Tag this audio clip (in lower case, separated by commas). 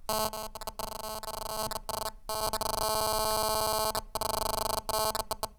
telephone, alarm